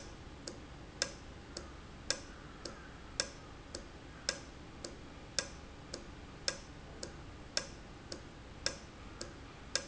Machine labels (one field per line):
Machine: valve